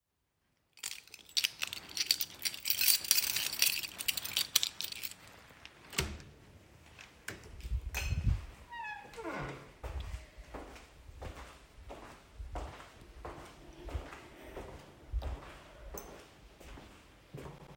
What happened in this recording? I unlocked the door with my key, opened the door and walked out of the dinning area